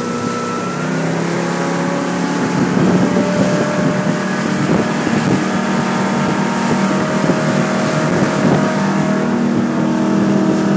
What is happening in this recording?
An engine speeds up, wind blows, water splashes